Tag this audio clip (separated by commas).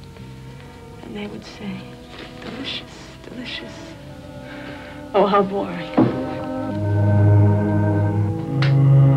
Music, Speech